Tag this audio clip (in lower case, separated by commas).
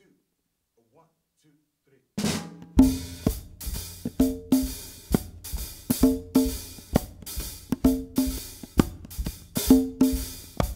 playing congas